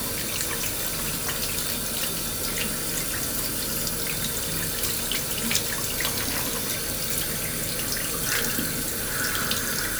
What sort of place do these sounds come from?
restroom